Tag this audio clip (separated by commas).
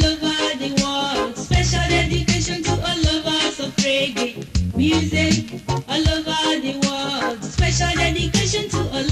Music